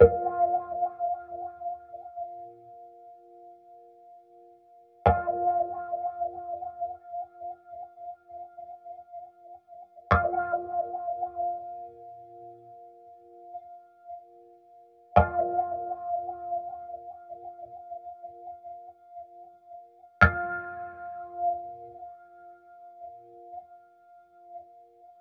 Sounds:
Plucked string instrument, Music, Guitar, Musical instrument

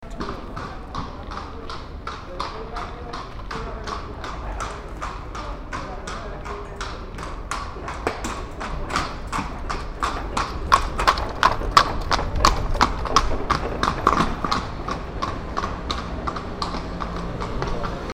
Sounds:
Animal, livestock

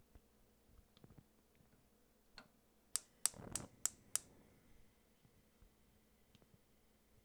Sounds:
Fire

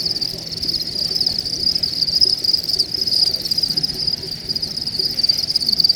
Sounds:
Wild animals, Cricket, Insect, Animal

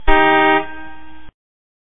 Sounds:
Alarm, Car, Motor vehicle (road), car horn, Vehicle

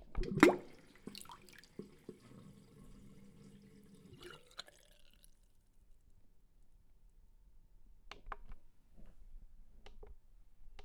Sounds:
Domestic sounds, Sink (filling or washing)

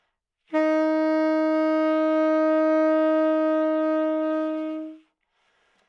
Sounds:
woodwind instrument, Music, Musical instrument

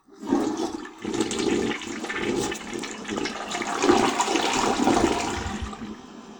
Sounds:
Water, home sounds, Toilet flush

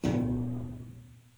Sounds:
thud

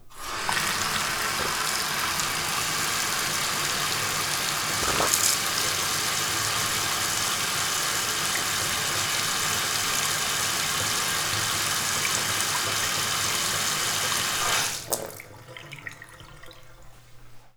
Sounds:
home sounds, Bathtub (filling or washing)

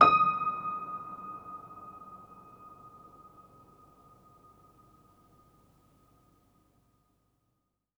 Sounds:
Music, Piano, Keyboard (musical), Musical instrument

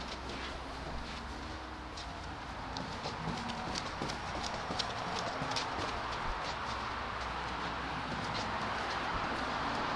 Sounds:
Run

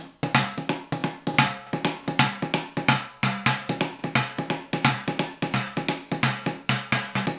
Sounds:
Musical instrument, Music, Drum, Percussion, Drum kit

